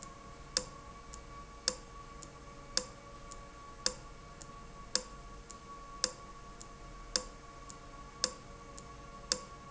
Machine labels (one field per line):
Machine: valve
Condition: abnormal